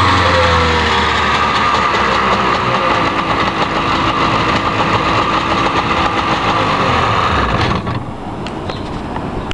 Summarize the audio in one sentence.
An engine revving then cutting off